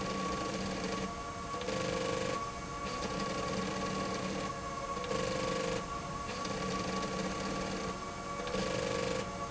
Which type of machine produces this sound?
slide rail